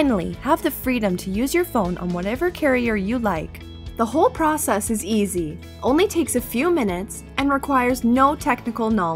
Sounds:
music
speech

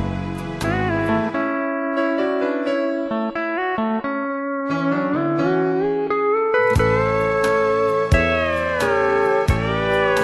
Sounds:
musical instrument
music
guitar
steel guitar

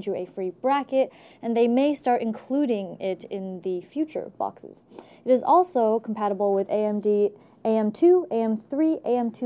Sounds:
speech

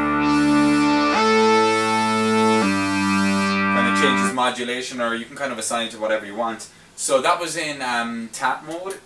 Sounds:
music
plucked string instrument
musical instrument
speech
guitar

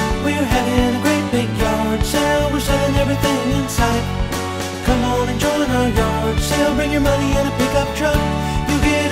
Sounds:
music

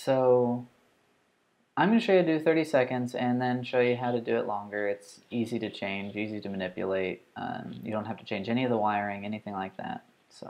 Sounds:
speech

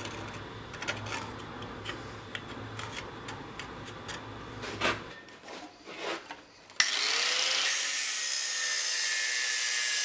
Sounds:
forging swords

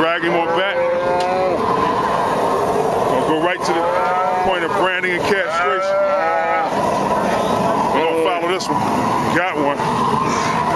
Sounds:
livestock
cattle
moo

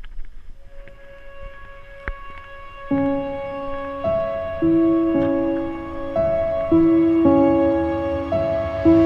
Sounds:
music

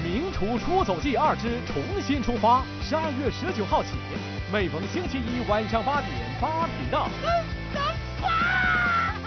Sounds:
snicker
speech
music

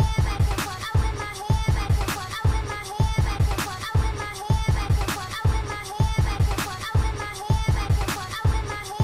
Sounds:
music

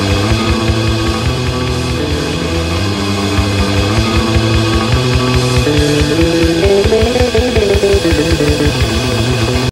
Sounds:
music

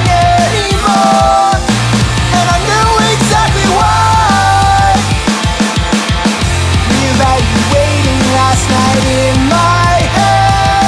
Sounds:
music
dance music

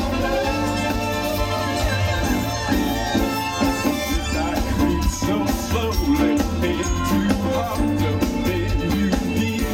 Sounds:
music

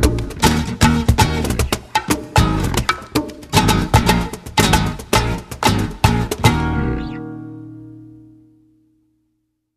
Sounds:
music

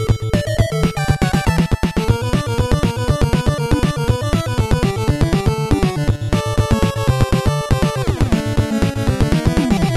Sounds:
video game music
music
soundtrack music

